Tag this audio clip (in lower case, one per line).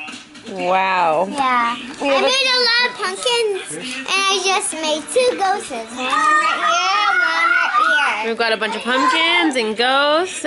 inside a small room
child speech
speech